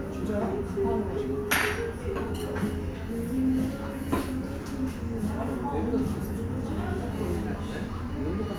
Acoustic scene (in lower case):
restaurant